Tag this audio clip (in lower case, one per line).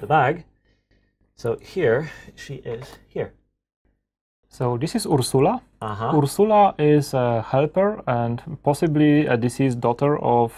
speech
inside a small room